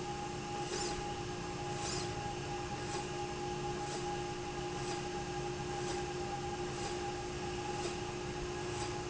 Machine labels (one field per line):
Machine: slide rail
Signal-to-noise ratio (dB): -6 dB